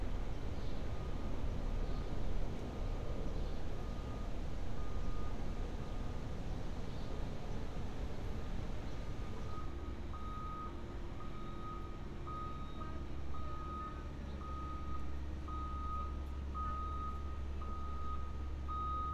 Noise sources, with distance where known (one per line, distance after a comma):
reverse beeper